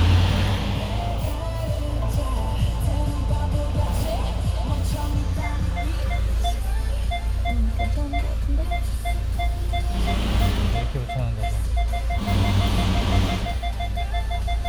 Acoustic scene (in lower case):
car